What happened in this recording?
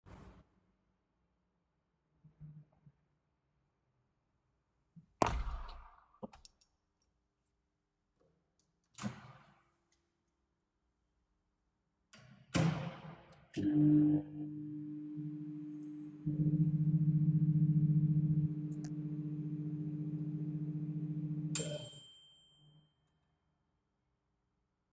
I was in the kitchen and closed the window. After that, I opened the microwave and started it.